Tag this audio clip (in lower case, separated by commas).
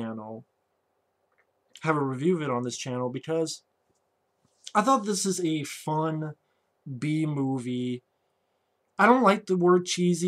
speech